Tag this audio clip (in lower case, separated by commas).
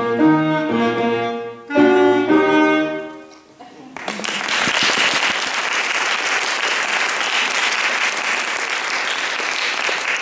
music, piano, clarinet, musical instrument